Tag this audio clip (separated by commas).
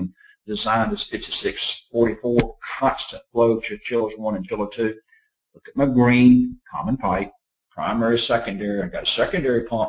Speech